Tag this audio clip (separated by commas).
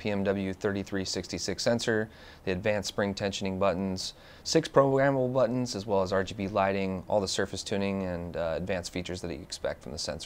Speech